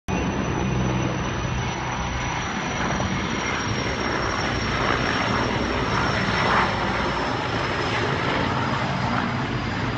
Large military aircraft idling